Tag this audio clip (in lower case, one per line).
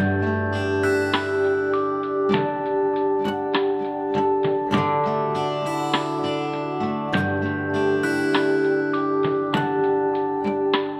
acoustic guitar